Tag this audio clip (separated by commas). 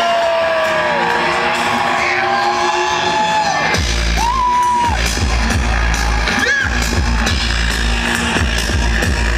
Music